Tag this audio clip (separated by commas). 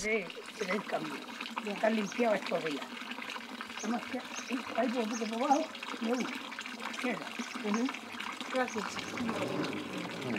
Speech, outside, urban or man-made